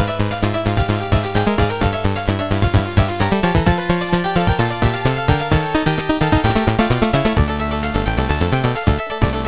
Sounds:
Music

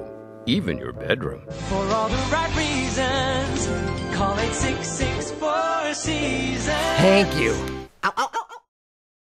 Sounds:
Music, Speech

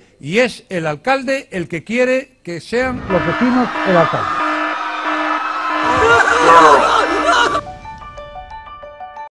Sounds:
Speech

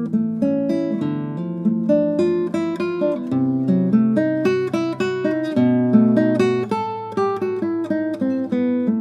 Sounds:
Guitar, Plucked string instrument, playing electric guitar, Musical instrument, Electric guitar, Strum, Music

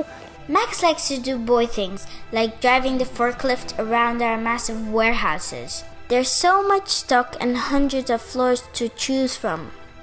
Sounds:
Speech, Music

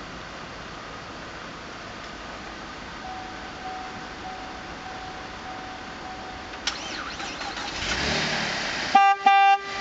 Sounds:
Engine, Car, Vehicle

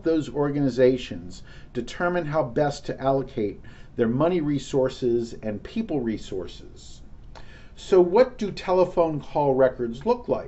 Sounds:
Speech

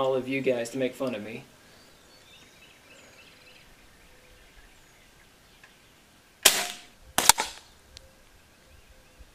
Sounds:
gunfire, cap gun shooting, Cap gun

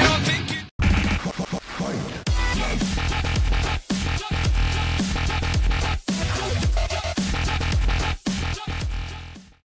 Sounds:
Music

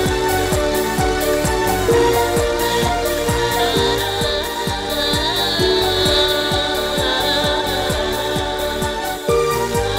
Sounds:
Techno, Music, Electronic music

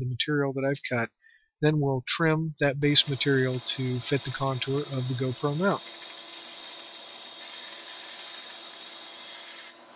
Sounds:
inside a small room, Speech

